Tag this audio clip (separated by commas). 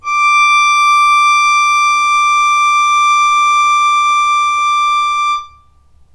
Music, Musical instrument, Bowed string instrument